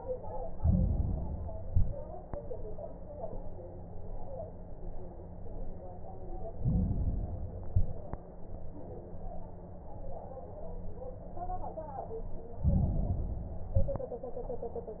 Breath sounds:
Inhalation: 0.49-1.63 s, 6.48-7.62 s, 12.54-13.68 s
Exhalation: 1.63-2.18 s, 7.69-8.25 s, 13.68-14.23 s
Crackles: 0.49-1.63 s, 1.63-2.18 s, 6.48-7.62 s, 7.69-8.25 s, 13.68-14.23 s

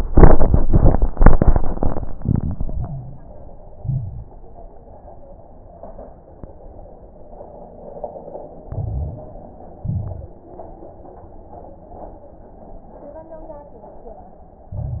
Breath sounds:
Inhalation: 2.53-3.35 s, 8.66-9.80 s, 14.71-15.00 s
Exhalation: 3.78-4.32 s, 9.80-10.34 s
Crackles: 2.53-3.35 s, 3.78-4.32 s, 8.66-9.79 s, 9.82-10.36 s, 14.71-15.00 s

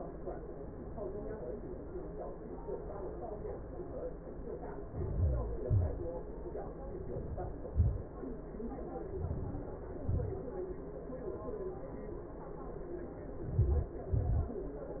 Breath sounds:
Inhalation: 4.69-5.79 s, 8.92-9.70 s, 13.21-13.98 s
Exhalation: 5.84-6.72 s, 9.75-10.34 s, 14.02-14.67 s

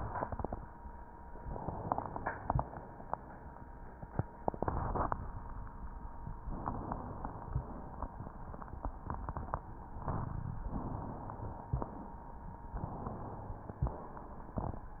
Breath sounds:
Inhalation: 1.43-2.61 s, 6.47-7.52 s, 10.68-11.73 s, 12.80-13.83 s
Exhalation: 2.63-3.68 s, 11.73-12.34 s, 13.83-14.60 s
Crackles: 1.43-2.61 s

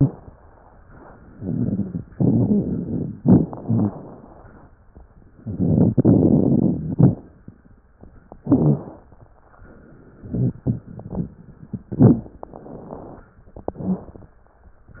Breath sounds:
Inhalation: 1.35-2.05 s, 3.21-4.65 s, 8.43-9.09 s, 11.88-12.41 s
Exhalation: 2.09-3.13 s, 5.37-7.21 s, 10.19-11.40 s
Crackles: 1.35-2.05 s, 2.09-3.13 s, 3.21-3.99 s, 5.37-7.21 s, 8.43-9.09 s, 10.19-11.40 s, 11.88-12.41 s

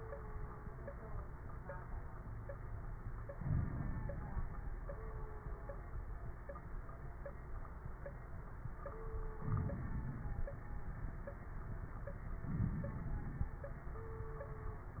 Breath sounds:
Inhalation: 3.35-4.50 s, 9.39-10.53 s, 12.49-13.64 s
Crackles: 3.35-4.50 s, 9.39-10.53 s, 12.49-13.64 s

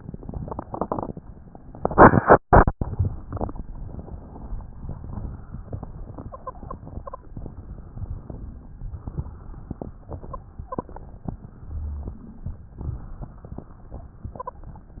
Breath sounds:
Inhalation: 3.76-4.81 s, 7.37-8.37 s, 11.43-12.77 s
Exhalation: 4.86-7.24 s, 8.45-11.07 s, 12.81-14.72 s
Wheeze: 6.25-7.24 s, 10.06-11.07 s, 14.28-14.72 s

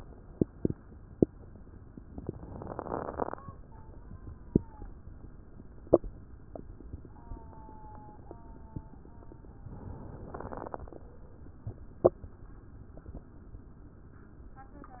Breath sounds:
Inhalation: 9.75-11.03 s
Crackles: 10.30-11.03 s

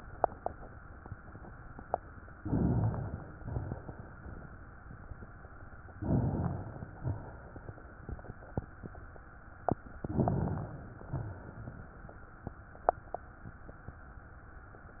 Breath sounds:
Inhalation: 2.37-3.39 s, 5.90-6.96 s, 9.93-10.95 s
Exhalation: 3.41-4.81 s, 6.98-8.19 s, 10.96-12.10 s

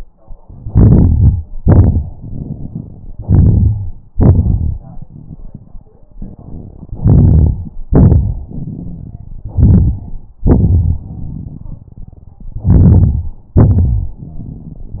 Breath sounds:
Inhalation: 0.39-1.46 s, 3.18-3.98 s, 6.93-7.73 s, 9.45-10.31 s, 12.59-13.54 s
Exhalation: 1.49-3.13 s, 4.14-5.84 s, 7.89-9.42 s, 10.41-12.52 s, 13.57-14.24 s
Wheeze: 3.18-3.98 s
Crackles: 4.14-5.84 s, 7.89-9.42 s

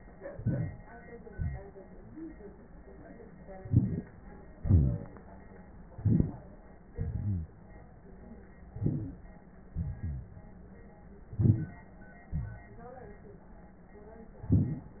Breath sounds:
Inhalation: 0.28-0.88 s, 3.61-4.08 s, 5.94-6.51 s, 8.75-9.32 s, 11.31-11.90 s
Exhalation: 1.33-1.78 s, 4.61-5.20 s, 6.93-7.50 s, 9.73-10.51 s, 12.35-12.88 s
Wheeze: 11.37-11.67 s
Rhonchi: 4.63-5.00 s, 6.95-7.50 s, 9.72-10.24 s

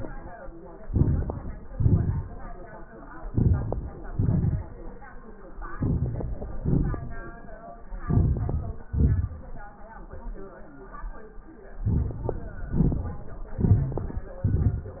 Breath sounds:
Inhalation: 0.83-1.67 s, 3.17-3.99 s, 5.59-6.54 s, 7.91-8.87 s, 11.78-12.66 s, 13.53-14.40 s
Exhalation: 1.68-2.86 s, 4.00-5.15 s, 6.54-7.83 s, 8.87-9.85 s, 12.69-13.56 s, 14.39-15.00 s
Crackles: 0.83-1.67 s, 3.17-3.99 s, 5.59-6.54 s, 7.87-8.85 s, 11.78-12.66 s, 13.53-14.40 s

